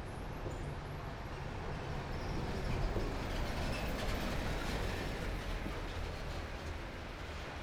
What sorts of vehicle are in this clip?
car, bus